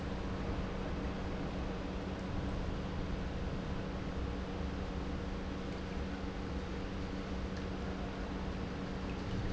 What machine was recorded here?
pump